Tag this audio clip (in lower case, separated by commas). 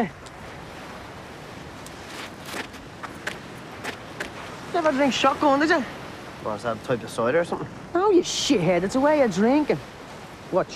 speech